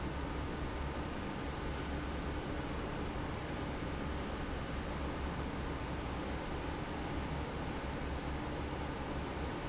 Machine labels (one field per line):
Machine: fan